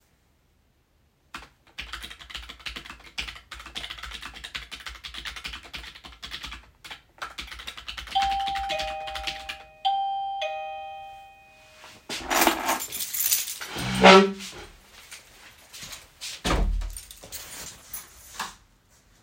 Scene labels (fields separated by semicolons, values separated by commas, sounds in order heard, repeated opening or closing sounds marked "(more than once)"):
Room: office; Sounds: keyboard typing, bell ringing, keys, footsteps, door